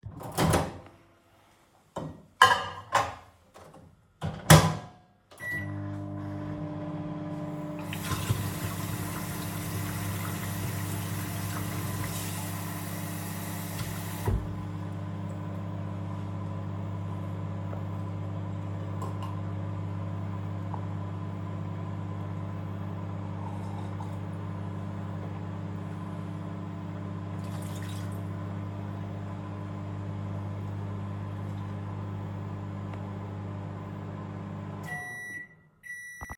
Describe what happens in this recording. I opened the microwave, put a plate of food in it, then turned it on, then decided to wash my hands before eating, then the microwave turned off.